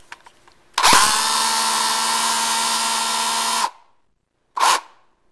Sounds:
Tools, Power tool, Drill

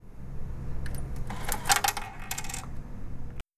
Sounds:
Coin (dropping), Domestic sounds

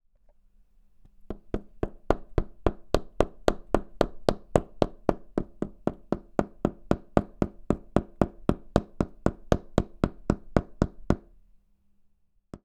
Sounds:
Hammer, Tools

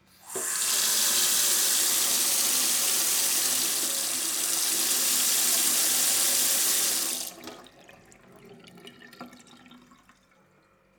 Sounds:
faucet, home sounds

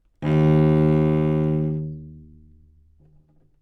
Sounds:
Bowed string instrument, Music, Musical instrument

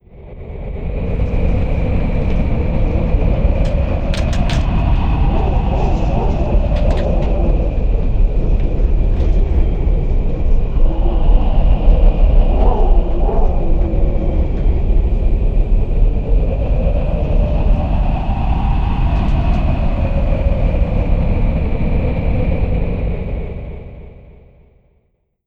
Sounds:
Wind

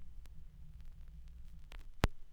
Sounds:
Crackle

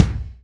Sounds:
Bass drum, Drum, Musical instrument, Music, Percussion

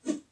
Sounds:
swoosh

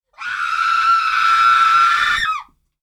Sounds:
Screaming, Human voice

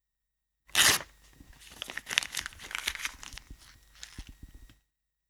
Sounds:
Tearing, crinkling

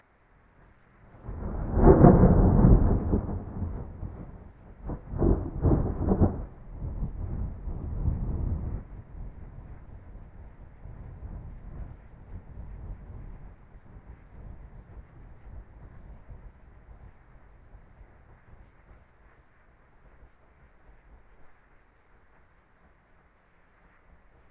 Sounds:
Thunder, Thunderstorm

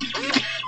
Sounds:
Mechanisms, Printer

